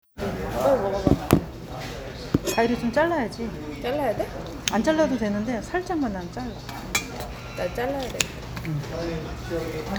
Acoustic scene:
restaurant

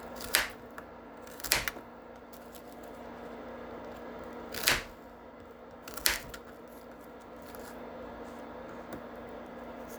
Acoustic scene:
kitchen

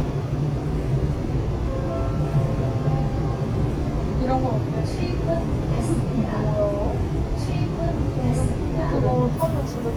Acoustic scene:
subway train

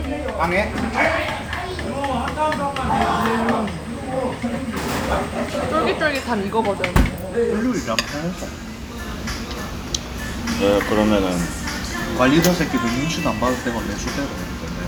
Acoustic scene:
restaurant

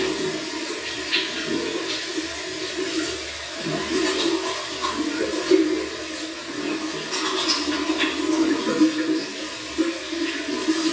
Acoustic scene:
restroom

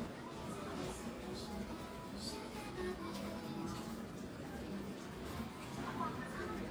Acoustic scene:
crowded indoor space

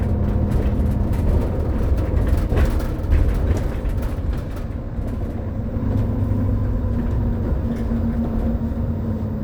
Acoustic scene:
bus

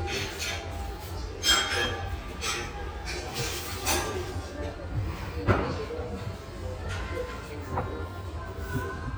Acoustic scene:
restaurant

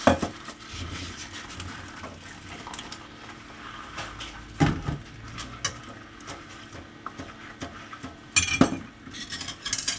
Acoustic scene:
kitchen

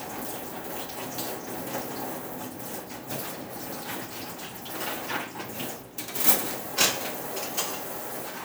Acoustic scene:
kitchen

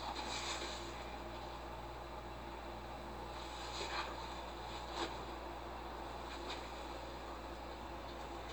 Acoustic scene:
elevator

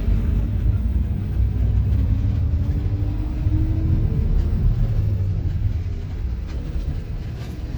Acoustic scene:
bus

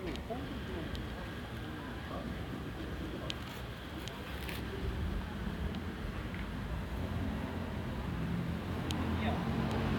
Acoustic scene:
residential area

